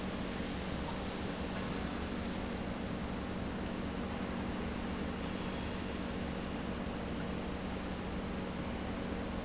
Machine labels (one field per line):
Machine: pump